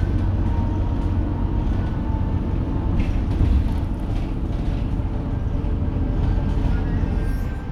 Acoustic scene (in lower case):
bus